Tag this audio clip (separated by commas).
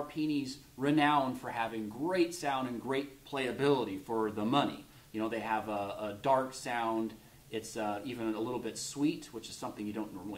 Speech